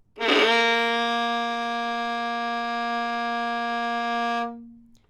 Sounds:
music
bowed string instrument
musical instrument

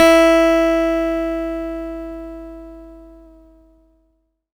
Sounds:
plucked string instrument
music
guitar
acoustic guitar
musical instrument

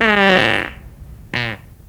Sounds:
fart

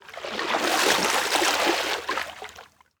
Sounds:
water
splatter
liquid

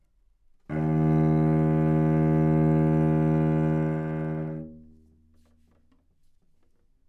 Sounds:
bowed string instrument
musical instrument
music

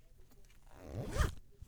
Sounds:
home sounds
zipper (clothing)

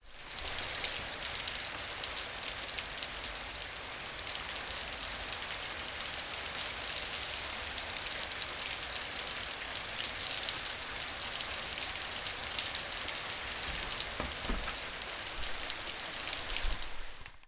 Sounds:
rain
water

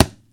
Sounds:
thump

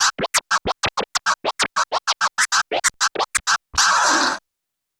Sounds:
scratching (performance technique)
musical instrument
music

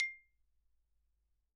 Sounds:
xylophone
music
musical instrument
mallet percussion
percussion

